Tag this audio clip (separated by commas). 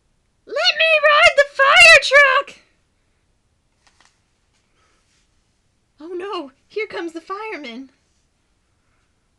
Speech